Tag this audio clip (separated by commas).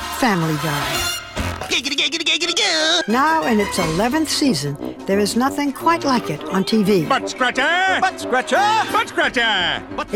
Music, Speech